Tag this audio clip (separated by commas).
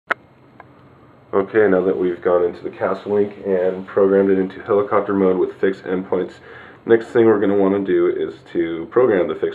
Speech, inside a small room